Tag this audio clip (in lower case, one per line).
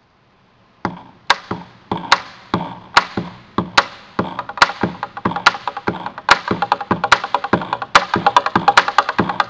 music